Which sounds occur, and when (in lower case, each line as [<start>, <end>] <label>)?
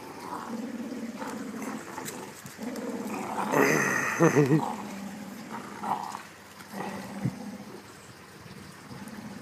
[0.00, 9.41] wind
[0.08, 2.36] growling
[2.55, 6.29] growling
[3.20, 4.93] laughter
[6.62, 7.96] growling
[8.34, 9.41] growling